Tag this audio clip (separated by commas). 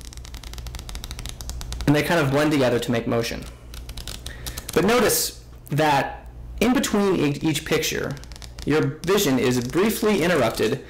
Speech